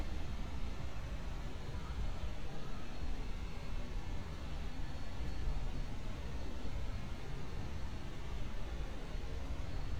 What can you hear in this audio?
background noise